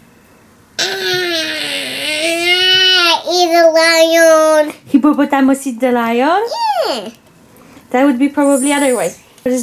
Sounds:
kid speaking
inside a small room
speech

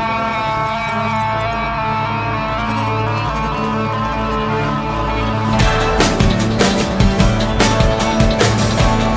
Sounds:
music

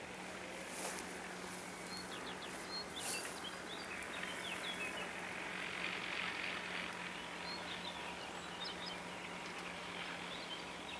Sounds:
outside, rural or natural

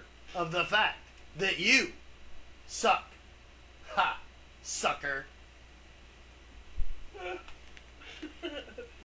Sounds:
speech

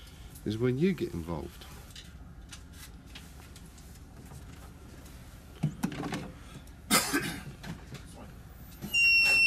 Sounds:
speech
door

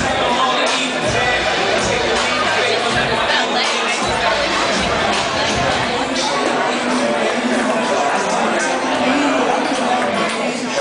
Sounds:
speech
music

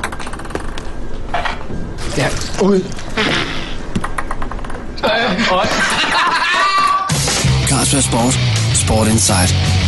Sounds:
ping
music
speech

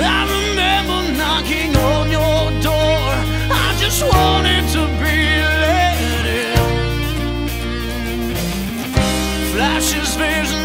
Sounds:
music

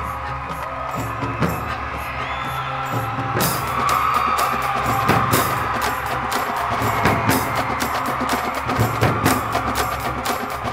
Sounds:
music

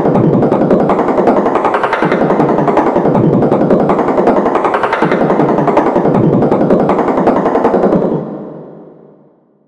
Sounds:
music

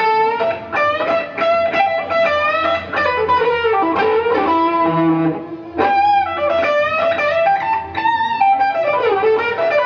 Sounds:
musical instrument
tapping (guitar technique)
music
guitar
plucked string instrument

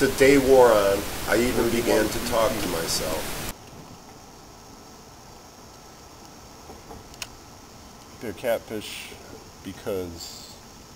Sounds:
speech

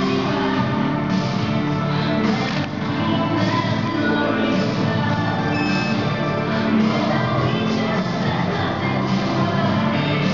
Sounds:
music

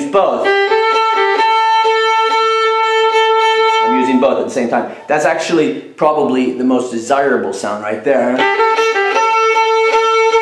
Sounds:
speech
music
musical instrument
violin

